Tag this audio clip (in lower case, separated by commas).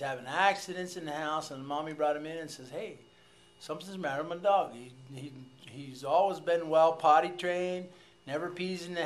speech